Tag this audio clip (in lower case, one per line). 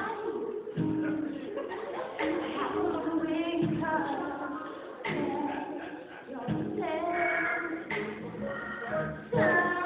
female singing
music